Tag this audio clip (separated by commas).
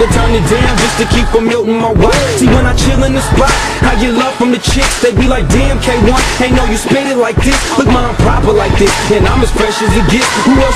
Music